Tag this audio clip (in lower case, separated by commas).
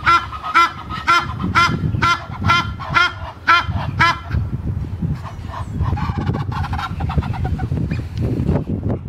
goose honking